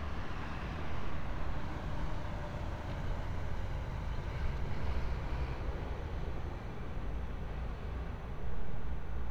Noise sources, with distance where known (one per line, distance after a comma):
medium-sounding engine, far